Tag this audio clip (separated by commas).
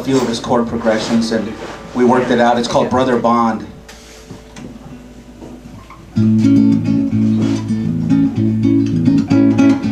Plucked string instrument, Music, Strum, Guitar, Musical instrument, Speech